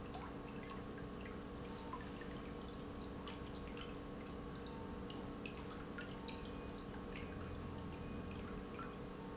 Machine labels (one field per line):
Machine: pump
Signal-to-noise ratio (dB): 6 dB